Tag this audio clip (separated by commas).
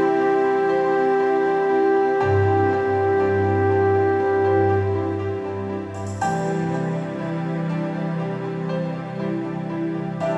Music